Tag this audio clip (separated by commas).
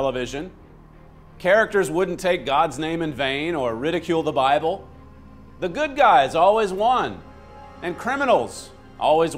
Music, Speech